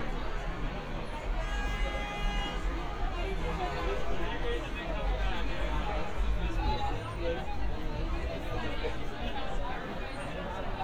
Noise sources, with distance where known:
person or small group talking, near

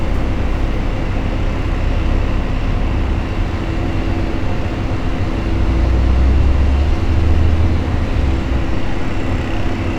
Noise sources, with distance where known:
small-sounding engine

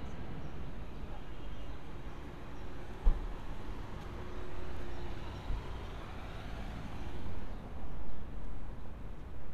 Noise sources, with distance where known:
engine of unclear size, far

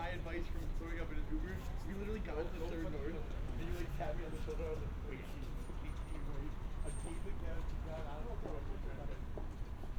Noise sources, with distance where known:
person or small group talking, near

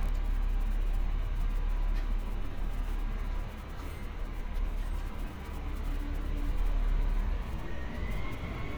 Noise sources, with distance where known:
large-sounding engine, far

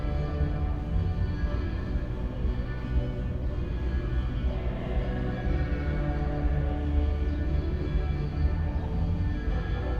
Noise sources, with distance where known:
music from an unclear source

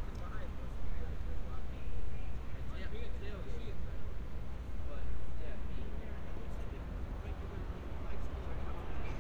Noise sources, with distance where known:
medium-sounding engine; person or small group talking, near

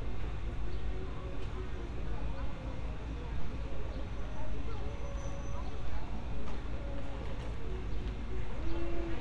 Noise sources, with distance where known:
music from a fixed source, far; person or small group talking

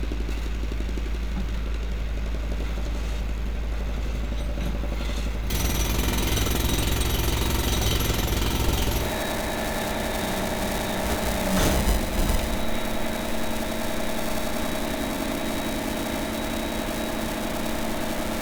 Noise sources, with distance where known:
hoe ram

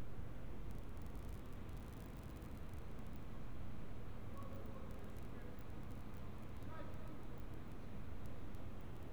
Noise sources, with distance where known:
background noise

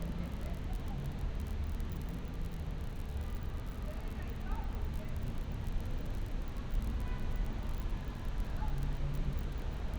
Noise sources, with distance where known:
car horn, far; unidentified human voice, far

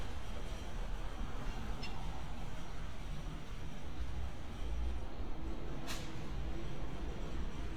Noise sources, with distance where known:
background noise

